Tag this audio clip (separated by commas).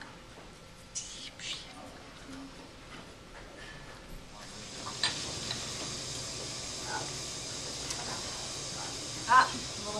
Speech